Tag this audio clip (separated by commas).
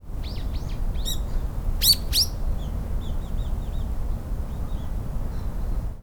Wild animals, Animal, Bird